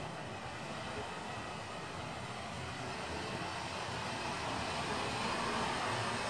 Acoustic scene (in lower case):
residential area